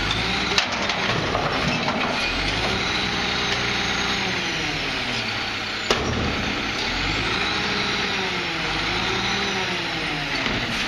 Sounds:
Vehicle, Truck

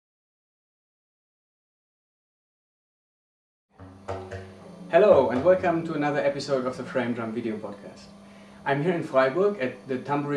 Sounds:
Speech

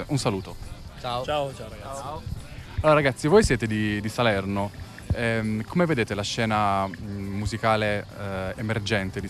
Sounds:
Speech, Music

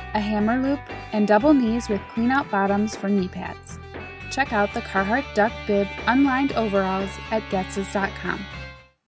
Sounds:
Speech, Music

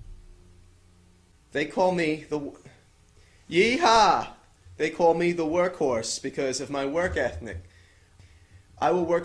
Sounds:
Speech

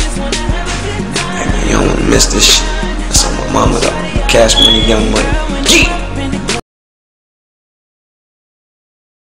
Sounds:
Speech, Soul music, Music

